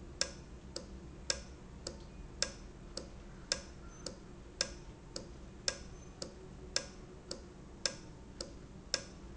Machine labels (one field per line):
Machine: valve